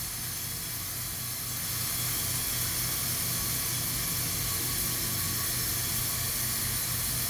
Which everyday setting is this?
restroom